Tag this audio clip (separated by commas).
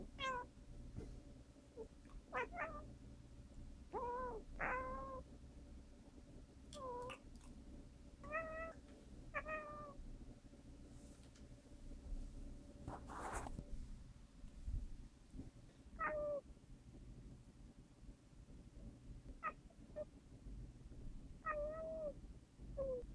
Animal, pets, Cat, Meow